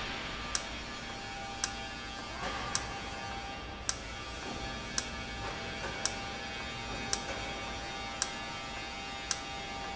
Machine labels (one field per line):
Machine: valve